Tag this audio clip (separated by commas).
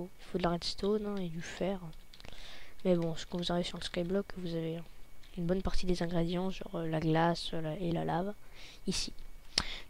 Speech